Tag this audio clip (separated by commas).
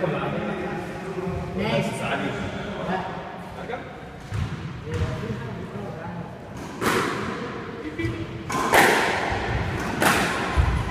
playing squash